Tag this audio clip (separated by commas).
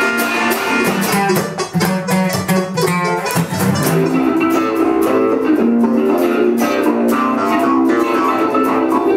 Music, Sampler